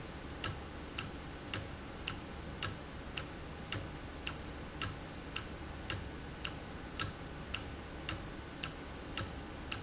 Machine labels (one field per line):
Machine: valve